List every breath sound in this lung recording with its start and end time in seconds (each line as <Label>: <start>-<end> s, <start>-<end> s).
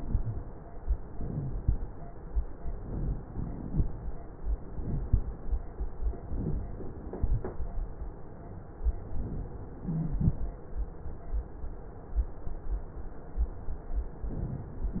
Inhalation: 1.04-1.76 s, 2.64-3.97 s, 4.61-5.45 s, 6.11-7.15 s, 9.83-10.55 s
Wheeze: 1.20-1.54 s, 9.83-10.23 s